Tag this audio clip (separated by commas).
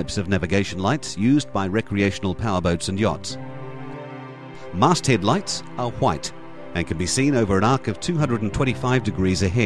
Speech, Music